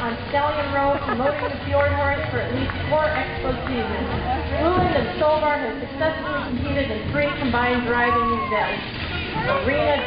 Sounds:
Horse, Clip-clop, Music, Speech

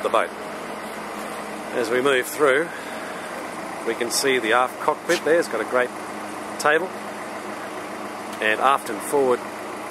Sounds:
Vehicle, Boat, Speech

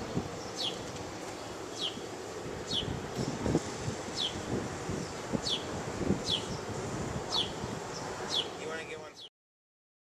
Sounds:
outside, rural or natural, Speech

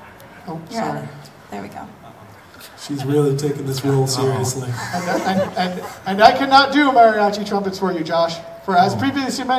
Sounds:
Speech

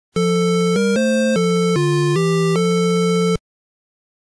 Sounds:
Soundtrack music

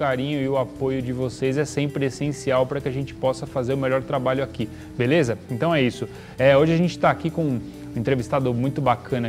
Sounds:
Speech, Music

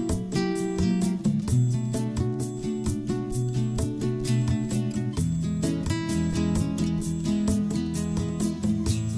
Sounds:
Music

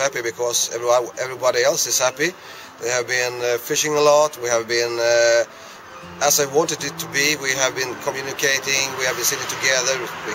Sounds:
Music, Vehicle, Speech

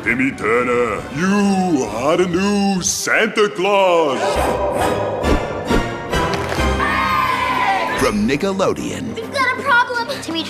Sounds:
Music, Speech

